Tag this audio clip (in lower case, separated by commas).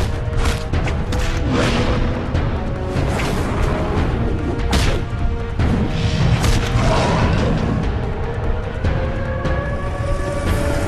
music